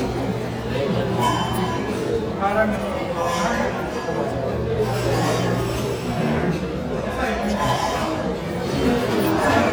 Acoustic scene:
restaurant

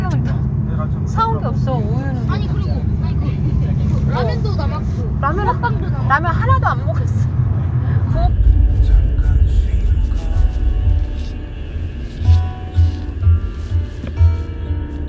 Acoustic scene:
car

